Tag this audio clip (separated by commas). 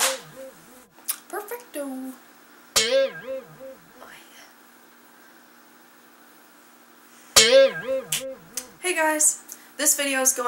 Speech, Music